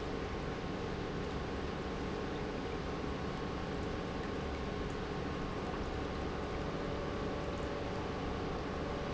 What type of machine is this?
pump